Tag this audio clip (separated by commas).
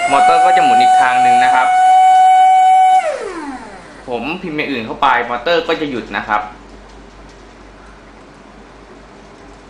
Speech, inside a small room, Air horn